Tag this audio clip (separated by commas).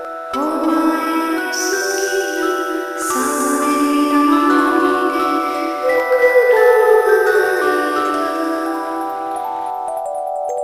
Music, Lullaby